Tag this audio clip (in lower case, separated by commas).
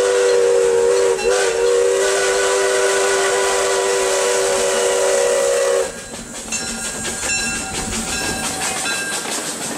train, train wagon, steam whistle, steam, hiss, clickety-clack, train whistle, rail transport